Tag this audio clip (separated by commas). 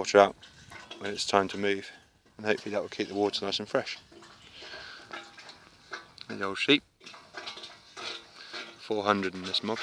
Speech